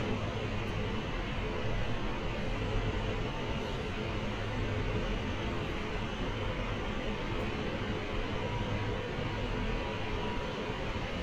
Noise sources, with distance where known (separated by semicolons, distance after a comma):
unidentified impact machinery